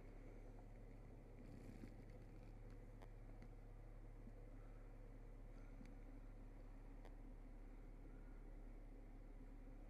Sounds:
Silence

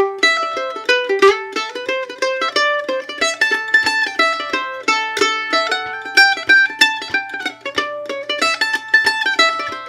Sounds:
Pizzicato

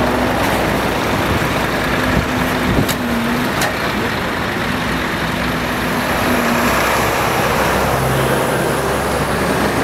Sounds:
Motor vehicle (road), Truck, Vehicle

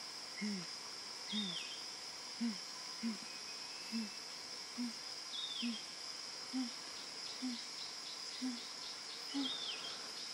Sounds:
chimpanzee pant-hooting

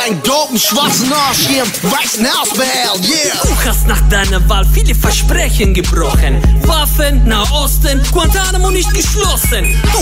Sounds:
Music, Speech

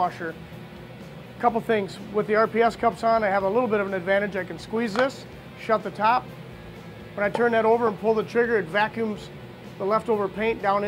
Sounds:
Music, Speech

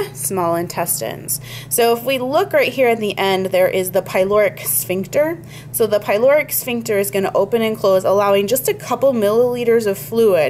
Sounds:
Speech

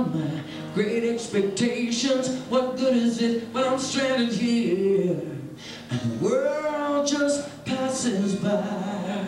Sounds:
Music

